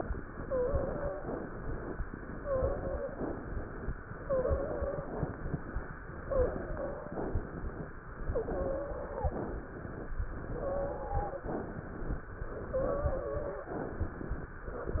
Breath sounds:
Inhalation: 1.29-1.96 s, 3.11-3.97 s, 6.18-7.06 s, 8.25-9.19 s, 10.59-11.44 s, 12.50-13.53 s
Exhalation: 0.00-1.24 s, 2.07-3.09 s, 4.25-5.69 s, 7.17-8.10 s, 9.30-10.15 s, 11.46-12.31 s, 13.72-14.50 s
Wheeze: 0.34-1.24 s, 2.35-3.30 s, 4.25-5.35 s, 6.18-7.12 s, 8.25-9.19 s, 10.59-11.44 s, 12.69-13.72 s

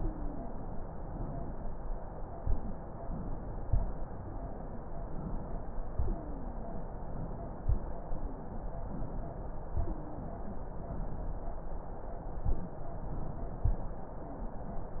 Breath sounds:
Wheeze: 0.00-0.55 s, 6.00-6.79 s, 9.81-10.34 s

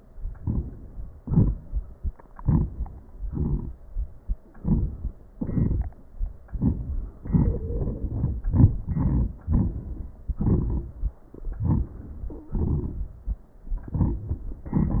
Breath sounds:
Inhalation: 0.39-0.61 s, 2.38-2.68 s, 4.58-4.93 s, 11.64-11.93 s
Exhalation: 1.17-1.57 s, 3.25-3.71 s, 5.35-5.90 s, 12.54-13.18 s

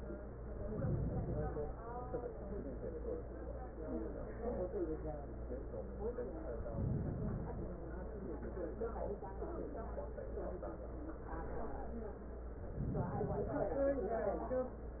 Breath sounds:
Inhalation: 0.53-1.81 s, 6.60-7.94 s, 12.58-13.91 s

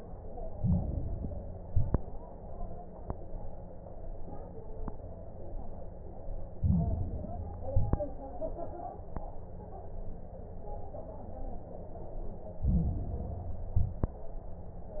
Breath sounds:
Inhalation: 0.47-1.55 s, 6.54-7.62 s, 12.56-13.64 s
Exhalation: 1.60-2.14 s, 7.66-8.21 s, 13.68-14.23 s
Crackles: 0.47-1.55 s, 1.60-2.14 s, 6.54-7.62 s, 7.66-8.21 s, 12.56-13.64 s, 13.68-14.23 s

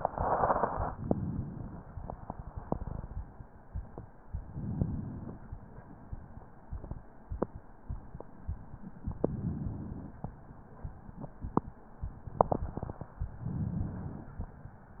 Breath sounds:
Inhalation: 4.34-5.52 s, 9.07-10.42 s, 13.37-14.39 s

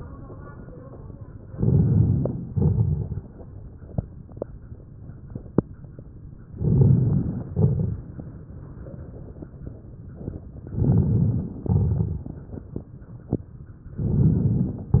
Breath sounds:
Inhalation: 1.50-2.49 s, 6.47-7.46 s, 10.66-11.65 s, 14.02-15.00 s
Exhalation: 2.50-3.27 s, 7.55-8.13 s, 11.71-12.38 s
Crackles: 1.50-2.49 s, 2.50-3.27 s, 6.47-7.46 s, 7.55-8.13 s, 10.66-11.65 s, 11.71-12.38 s, 14.02-15.00 s

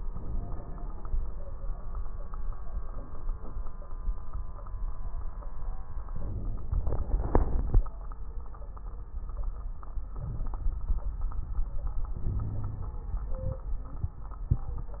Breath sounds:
Inhalation: 0.09-1.06 s, 6.12-6.68 s, 10.18-10.64 s, 12.16-13.03 s
Wheeze: 12.26-13.03 s
Crackles: 0.09-1.06 s, 6.12-6.68 s, 10.18-10.64 s

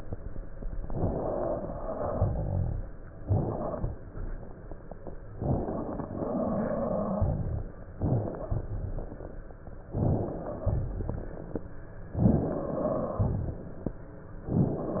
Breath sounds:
Inhalation: 0.81-1.71 s, 3.18-4.09 s, 5.35-6.16 s, 7.98-8.56 s, 9.84-10.60 s, 12.11-12.70 s
Exhalation: 1.71-3.11 s, 6.15-7.75 s, 8.54-9.70 s, 10.60-11.72 s, 12.69-14.22 s
Stridor: 6.15-7.75 s
Crackles: 10.60-11.72 s

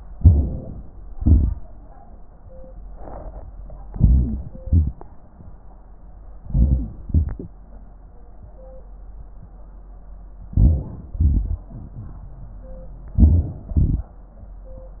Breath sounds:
Inhalation: 0.11-1.07 s, 3.92-4.58 s, 6.40-7.06 s, 10.53-11.13 s, 13.18-13.79 s
Exhalation: 1.07-1.65 s, 4.59-5.09 s, 7.05-7.59 s, 11.17-12.77 s, 13.79-14.41 s
Wheeze: 3.90-4.60 s
Crackles: 4.55-5.06 s, 6.41-7.04 s, 7.05-7.59 s, 11.17-12.77 s, 13.79-14.41 s

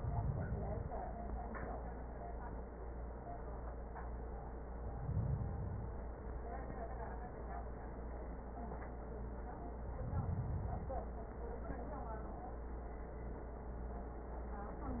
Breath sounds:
Inhalation: 0.00-0.92 s, 4.85-5.92 s, 9.84-11.04 s

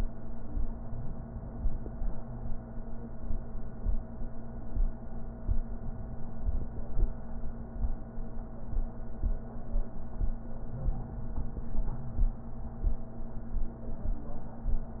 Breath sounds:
Inhalation: 0.83-2.14 s, 10.82-12.12 s
Wheeze: 0.72-1.17 s, 10.74-12.27 s

